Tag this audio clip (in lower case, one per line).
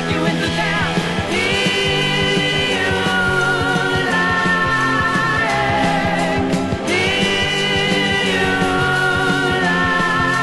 music